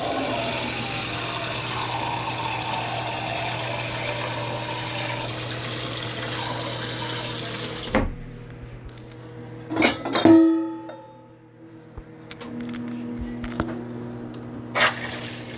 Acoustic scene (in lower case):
kitchen